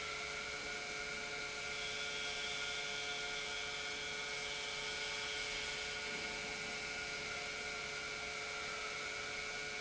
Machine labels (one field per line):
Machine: pump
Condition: normal